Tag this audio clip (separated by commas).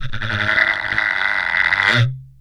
Wood